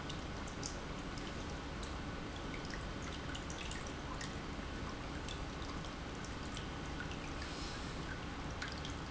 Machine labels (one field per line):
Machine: pump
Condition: normal